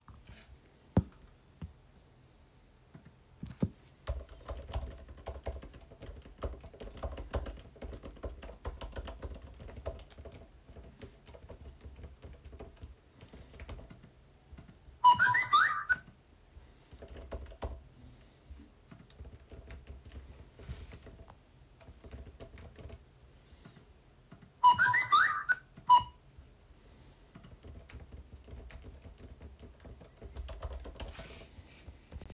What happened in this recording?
I was working on my laptop, and the noticifcation hit my phone.The two of this sounds was polyphony.